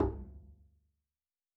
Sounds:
Musical instrument, Bowed string instrument, Music

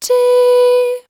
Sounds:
Singing, Human voice, Female singing

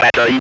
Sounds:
Human voice, Speech

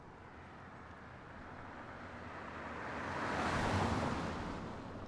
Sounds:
Vehicle, Traffic noise, Motor vehicle (road), Car

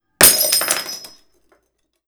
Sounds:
Shatter, Glass

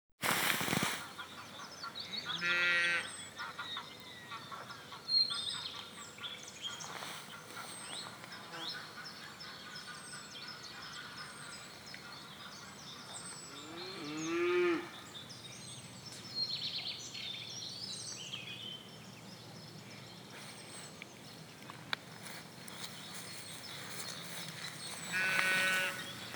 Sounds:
Wild animals, Bird, bird call, Animal

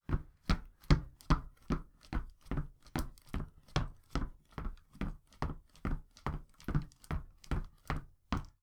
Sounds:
Run

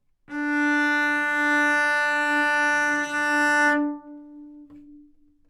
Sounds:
Bowed string instrument, Music, Musical instrument

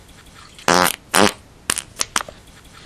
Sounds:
Fart

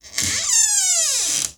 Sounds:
Domestic sounds, Door

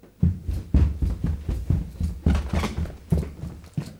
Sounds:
Run

